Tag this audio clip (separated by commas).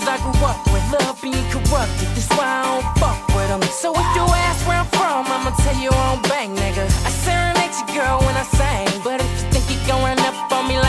Music